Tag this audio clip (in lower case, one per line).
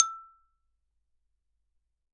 music
musical instrument
marimba
mallet percussion
percussion